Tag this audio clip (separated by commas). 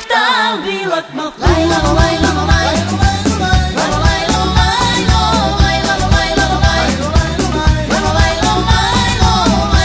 Singing, Music, Music of Latin America